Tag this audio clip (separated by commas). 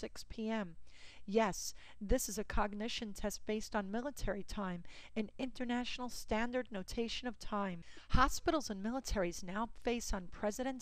Speech